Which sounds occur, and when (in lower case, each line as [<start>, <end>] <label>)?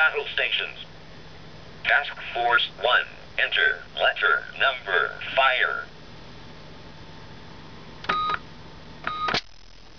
[0.00, 0.86] man speaking
[0.00, 0.90] radio
[0.00, 9.95] mechanisms
[1.84, 3.26] man speaking
[1.86, 3.08] radio
[3.41, 3.86] man speaking
[3.41, 3.86] radio
[3.99, 5.13] radio
[4.00, 5.25] man speaking
[5.23, 5.89] radio
[5.40, 5.92] man speaking
[8.06, 8.19] keypress tone
[8.06, 8.42] beep
[8.32, 8.42] keypress tone
[9.05, 9.12] keypress tone
[9.10, 9.43] beep
[9.30, 9.39] generic impact sounds
[9.35, 9.49] radio